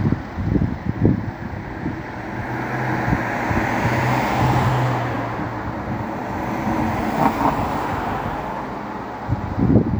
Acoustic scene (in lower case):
street